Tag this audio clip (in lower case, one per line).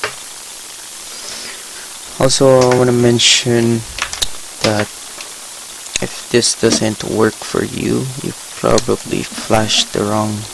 speech